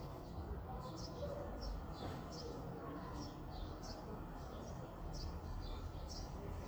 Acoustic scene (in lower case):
residential area